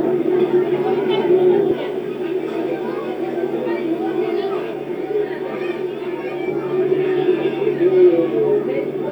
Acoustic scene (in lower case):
park